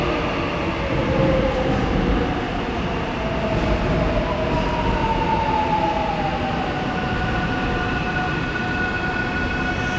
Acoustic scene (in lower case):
subway station